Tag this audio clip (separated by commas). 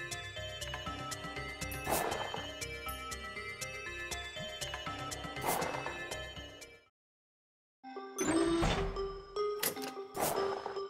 Music